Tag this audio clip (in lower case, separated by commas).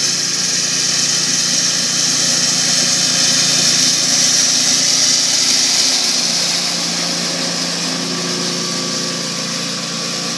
lawn mowing